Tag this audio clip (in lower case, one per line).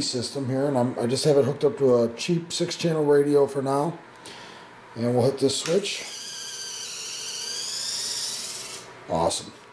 inside a small room
speech